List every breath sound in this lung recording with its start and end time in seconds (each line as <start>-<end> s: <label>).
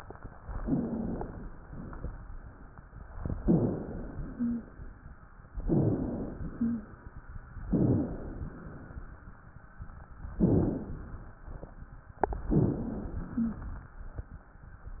0.59-1.20 s: wheeze
0.61-1.52 s: inhalation
1.63-2.24 s: exhalation
3.42-4.21 s: inhalation
4.34-4.69 s: wheeze
5.64-6.43 s: inhalation
6.55-6.89 s: wheeze
7.72-8.16 s: wheeze
7.72-8.54 s: inhalation
10.38-11.35 s: inhalation
12.48-13.32 s: inhalation
13.36-13.74 s: wheeze